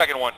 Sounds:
Male speech, Speech, Human voice

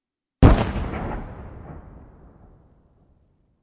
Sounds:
Boom, Explosion

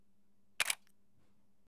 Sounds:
Camera, Mechanisms

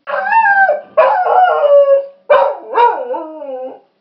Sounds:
Domestic animals, Animal, Dog

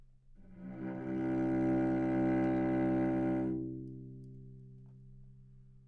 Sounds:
Music, Bowed string instrument, Musical instrument

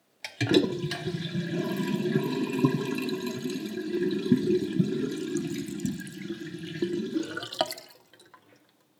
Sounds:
Liquid

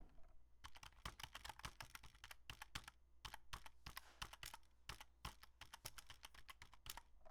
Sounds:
Computer keyboard, Typing, home sounds

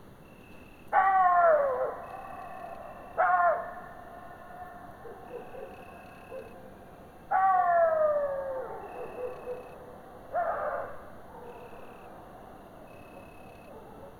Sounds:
Animal, Domestic animals, Dog

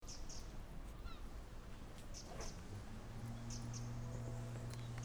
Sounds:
Bird, Animal, bird call, Wild animals

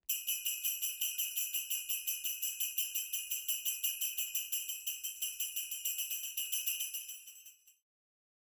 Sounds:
Bell

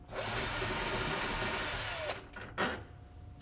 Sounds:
Tools

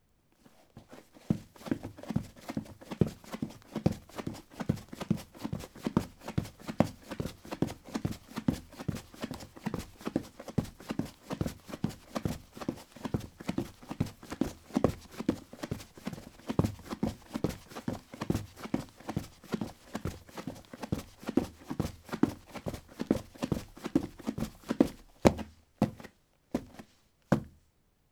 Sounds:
Run

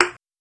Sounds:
Thump

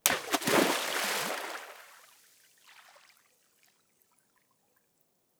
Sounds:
Liquid, Splash

